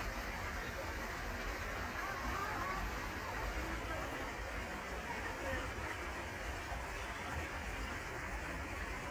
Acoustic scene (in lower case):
park